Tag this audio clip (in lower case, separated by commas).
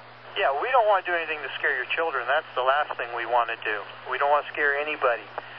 speech, human voice